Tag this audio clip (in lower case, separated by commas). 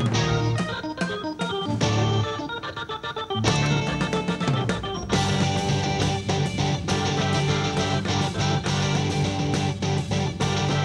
drum kit, musical instrument, music, guitar, drum